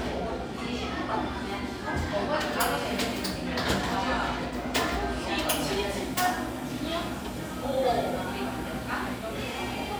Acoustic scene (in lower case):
cafe